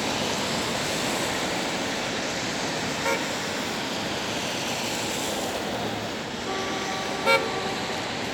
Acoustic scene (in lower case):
street